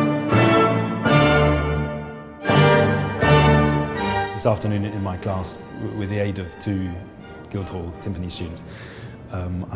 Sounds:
speech
piano
timpani
music

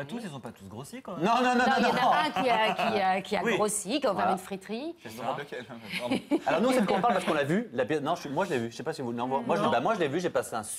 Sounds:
speech

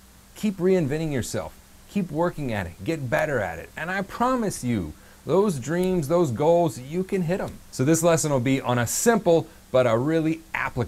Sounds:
speech

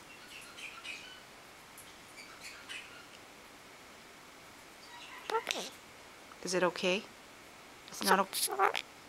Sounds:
bird
speech
domestic animals
inside a small room

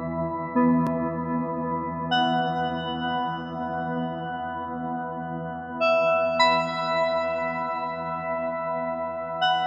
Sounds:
music

